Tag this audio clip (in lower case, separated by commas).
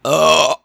burping